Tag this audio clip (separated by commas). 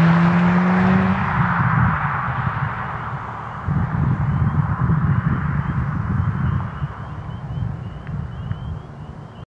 Clatter, Flap, Chirp